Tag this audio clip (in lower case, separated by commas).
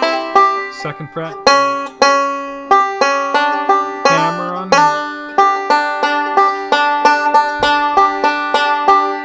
playing banjo